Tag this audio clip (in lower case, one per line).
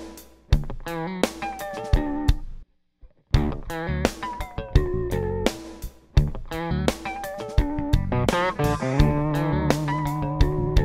music